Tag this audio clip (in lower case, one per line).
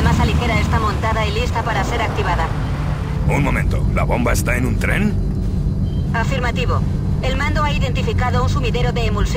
music
vehicle
speech